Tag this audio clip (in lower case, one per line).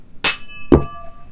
thud